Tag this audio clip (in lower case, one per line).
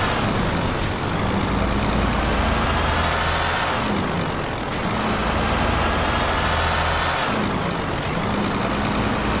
vehicle
truck